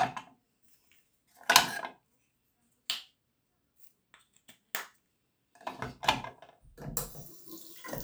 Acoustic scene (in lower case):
restroom